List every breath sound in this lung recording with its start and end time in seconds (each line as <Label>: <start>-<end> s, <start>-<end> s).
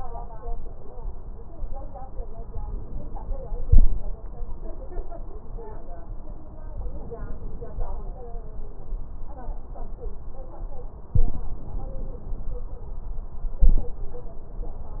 Inhalation: 6.85-7.95 s, 11.16-12.55 s